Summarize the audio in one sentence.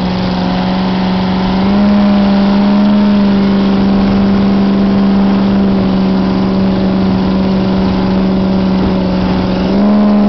Boat motor running